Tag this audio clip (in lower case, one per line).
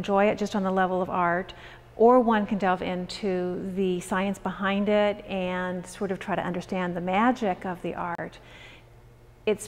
speech